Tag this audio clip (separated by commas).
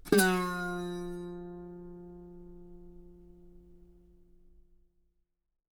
Plucked string instrument, Musical instrument, Music, Guitar